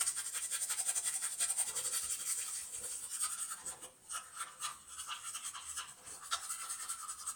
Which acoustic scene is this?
restroom